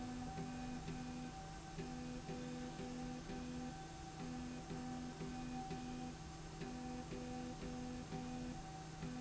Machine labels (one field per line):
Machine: slide rail